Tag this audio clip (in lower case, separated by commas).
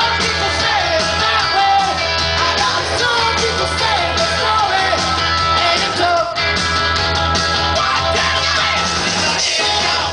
music